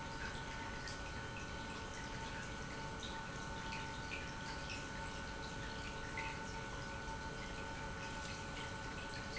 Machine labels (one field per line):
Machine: pump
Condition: normal